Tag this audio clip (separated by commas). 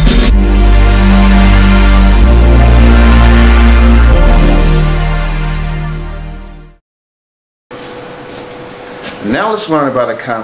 Music